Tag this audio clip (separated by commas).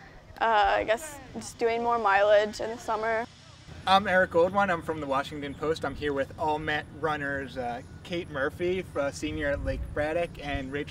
Speech